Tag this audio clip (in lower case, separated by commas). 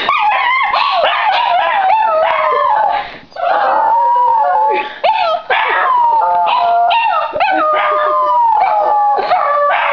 dog, canids, pets, animal, howl